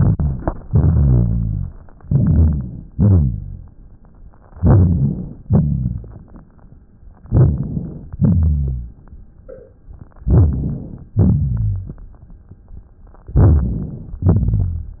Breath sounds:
0.65-1.84 s: exhalation
0.69-1.75 s: rhonchi
2.02-2.86 s: inhalation
2.07-2.91 s: rhonchi
2.94-3.74 s: rhonchi
2.94-3.77 s: exhalation
4.56-5.41 s: inhalation
4.56-5.41 s: rhonchi
5.46-6.14 s: rhonchi
5.49-6.78 s: exhalation
5.49-6.78 s: crackles
7.25-8.09 s: inhalation
7.26-8.10 s: rhonchi
8.17-8.97 s: rhonchi
8.17-9.42 s: exhalation
10.23-11.05 s: rhonchi
10.26-11.11 s: inhalation
11.11-11.88 s: rhonchi
11.15-13.00 s: exhalation
11.15-13.00 s: crackles
13.31-14.17 s: rhonchi
13.37-14.22 s: inhalation

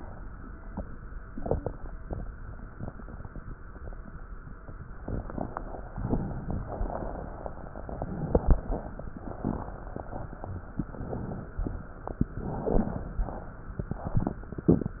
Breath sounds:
4.82-5.91 s: inhalation
4.82-5.91 s: crackles
5.93-7.74 s: exhalation
5.93-7.74 s: crackles
7.76-9.21 s: inhalation
7.76-9.21 s: crackles
9.23-10.68 s: exhalation
9.23-10.68 s: crackles
10.72-11.56 s: inhalation
10.74-11.52 s: crackles
11.54-12.32 s: exhalation
11.54-12.32 s: crackles
12.35-13.13 s: inhalation
12.35-13.13 s: crackles
13.13-13.89 s: exhalation
13.13-13.89 s: crackles
13.89-14.64 s: inhalation
13.89-14.64 s: crackles

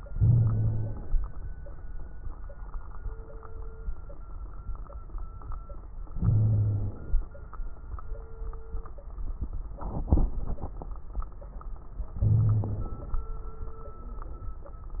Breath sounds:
0.09-0.94 s: wheeze
0.09-1.13 s: inhalation
6.14-6.97 s: wheeze
6.14-7.18 s: inhalation
12.18-12.92 s: wheeze
12.18-13.23 s: inhalation

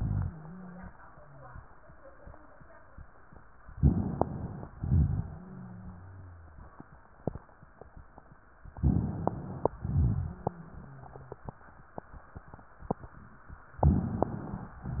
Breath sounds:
3.76-4.66 s: inhalation
4.80-6.62 s: exhalation
5.14-6.62 s: wheeze
8.76-9.74 s: inhalation
9.80-11.44 s: exhalation
9.98-11.44 s: wheeze
13.82-14.80 s: inhalation
14.80-15.00 s: exhalation
14.80-15.00 s: wheeze

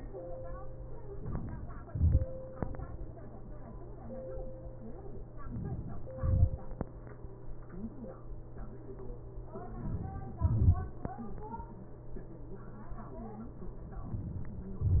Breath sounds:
1.92-2.25 s: exhalation
1.92-2.25 s: crackles
5.47-5.99 s: inhalation
6.22-6.57 s: exhalation
6.22-6.57 s: crackles
9.79-10.42 s: inhalation
10.39-10.74 s: exhalation
10.39-10.74 s: crackles

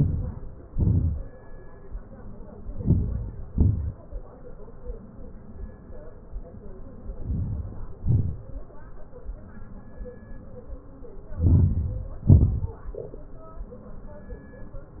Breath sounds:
0.00-0.54 s: inhalation
0.73-1.18 s: exhalation
2.79-3.40 s: inhalation
3.57-4.04 s: exhalation
7.29-7.94 s: inhalation
8.07-8.56 s: exhalation
11.46-12.04 s: inhalation
12.34-12.77 s: exhalation

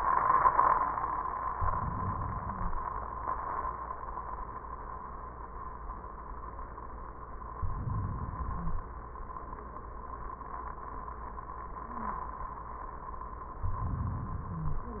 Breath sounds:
1.50-3.00 s: inhalation
7.44-8.94 s: inhalation
8.43-8.86 s: wheeze
13.54-15.00 s: inhalation
14.55-14.91 s: wheeze

